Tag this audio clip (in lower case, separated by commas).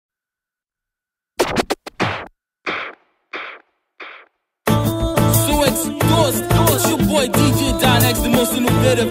music